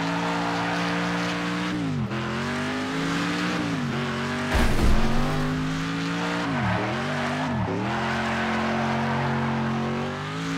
A motor vehicle is passing by and going fast